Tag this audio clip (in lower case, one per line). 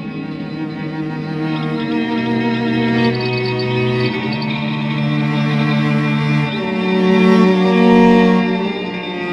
music
angry music